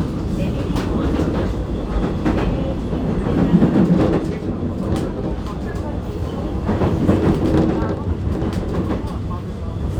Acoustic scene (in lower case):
subway train